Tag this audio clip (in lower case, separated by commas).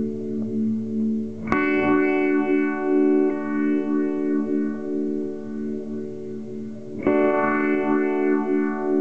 effects unit, musical instrument, music, guitar